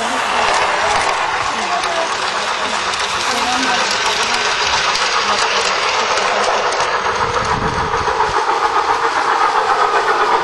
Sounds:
train, train wagon, speech, rail transport

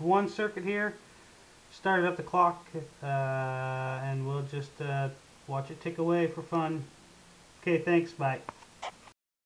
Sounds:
speech

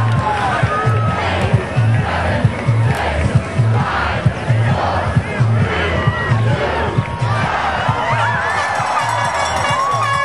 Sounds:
outside, urban or man-made, crowd, speech, music

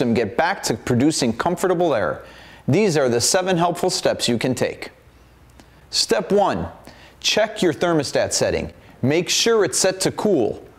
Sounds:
speech

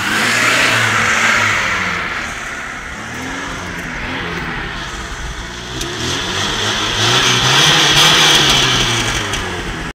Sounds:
vehicle, heavy engine (low frequency), car, vroom

